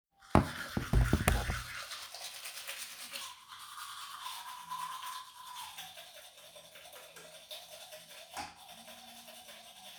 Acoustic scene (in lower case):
restroom